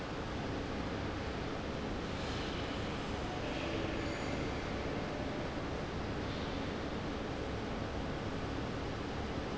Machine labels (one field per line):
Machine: fan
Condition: abnormal